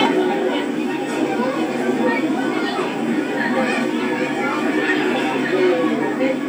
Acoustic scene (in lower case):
park